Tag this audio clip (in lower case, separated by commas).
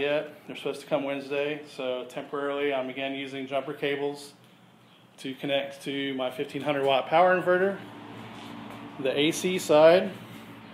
speech